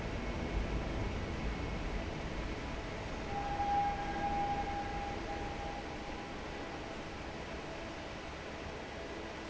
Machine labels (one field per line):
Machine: fan